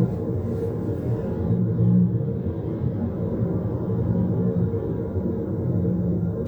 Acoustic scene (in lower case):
car